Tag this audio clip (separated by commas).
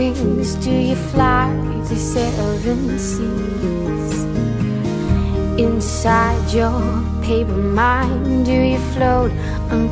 Keyboard (musical), Piano, Music